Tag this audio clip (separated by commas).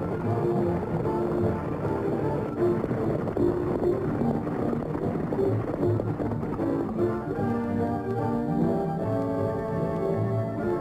outside, rural or natural, Music